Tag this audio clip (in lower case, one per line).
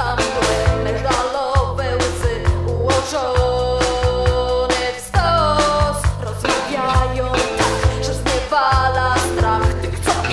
music
soul music